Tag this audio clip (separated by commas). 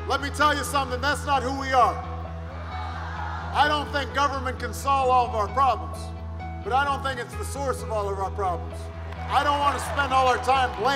Music, Speech